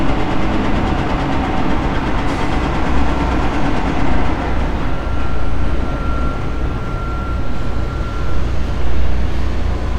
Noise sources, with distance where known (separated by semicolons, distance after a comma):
engine of unclear size, near; reverse beeper, near